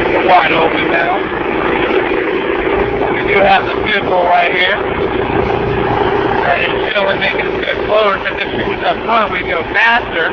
A motor boat is speeding and a man is talking over the engine